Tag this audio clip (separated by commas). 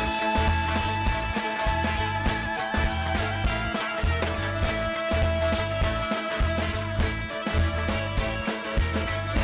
Music